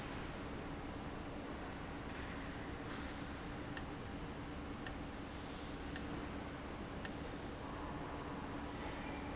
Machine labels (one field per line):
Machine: valve